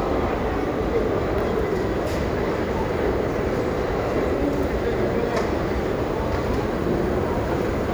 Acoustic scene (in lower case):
crowded indoor space